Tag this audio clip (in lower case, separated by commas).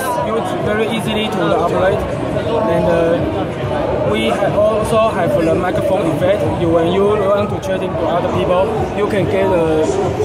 speech